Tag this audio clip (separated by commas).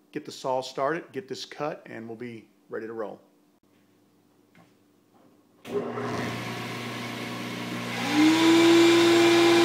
Microwave oven